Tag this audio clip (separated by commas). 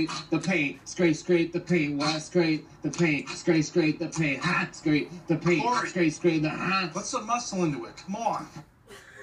Scrape, Speech